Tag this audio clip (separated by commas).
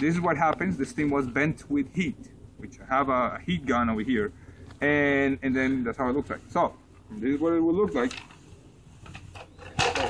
Speech